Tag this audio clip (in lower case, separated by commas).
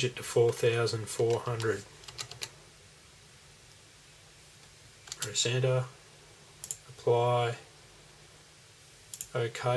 speech